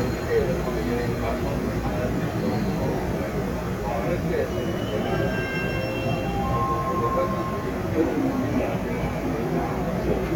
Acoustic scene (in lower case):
subway train